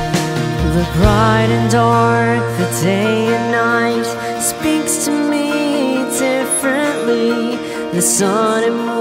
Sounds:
music, exciting music

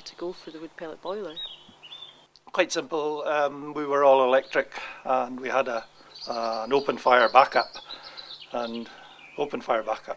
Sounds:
speech

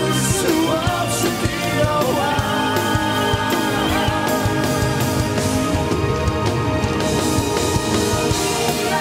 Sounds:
male singing, music

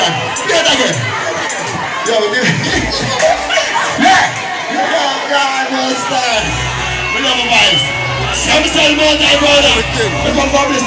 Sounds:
music, inside a public space, speech

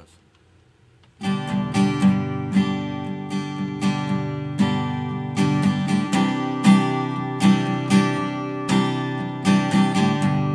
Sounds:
music

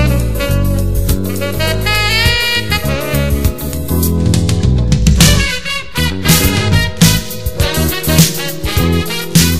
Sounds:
music, happy music

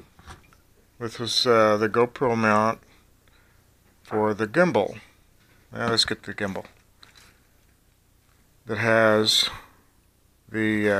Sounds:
speech

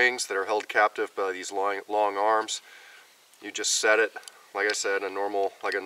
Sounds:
speech

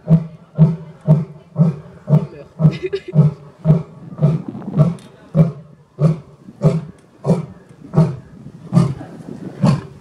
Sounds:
lions roaring

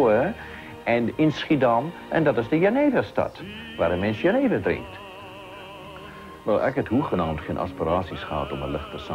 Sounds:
speech, music, male singing

